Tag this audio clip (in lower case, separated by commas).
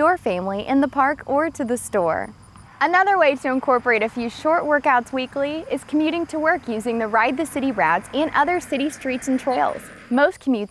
speech